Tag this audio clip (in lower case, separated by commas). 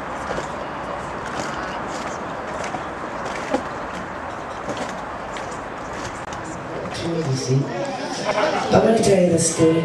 speech